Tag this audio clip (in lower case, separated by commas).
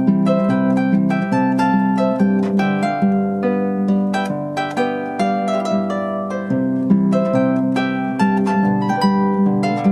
playing harp, harp, pizzicato